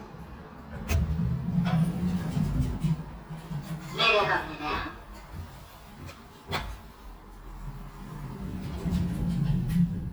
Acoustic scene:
elevator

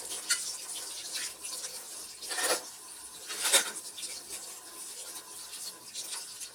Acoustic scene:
kitchen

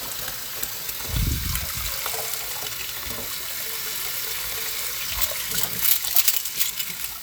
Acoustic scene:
kitchen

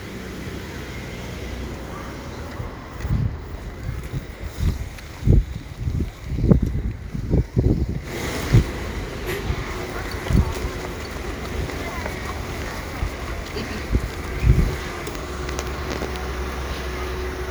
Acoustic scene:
residential area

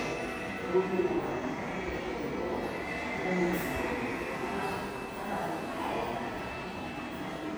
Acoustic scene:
subway station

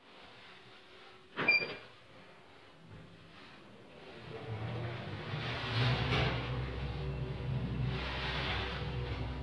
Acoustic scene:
elevator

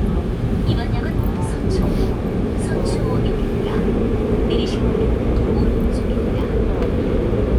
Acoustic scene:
subway train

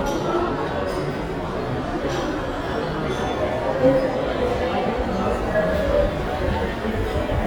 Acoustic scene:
crowded indoor space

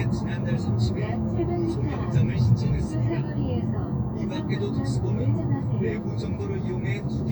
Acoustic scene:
car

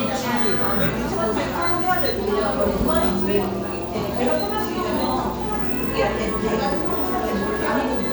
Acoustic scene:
cafe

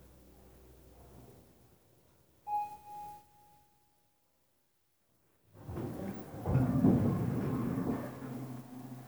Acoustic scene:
elevator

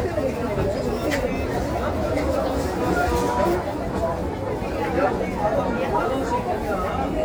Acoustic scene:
crowded indoor space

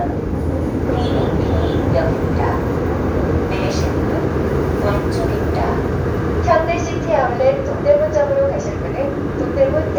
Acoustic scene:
subway train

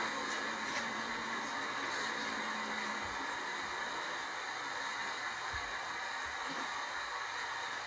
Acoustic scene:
bus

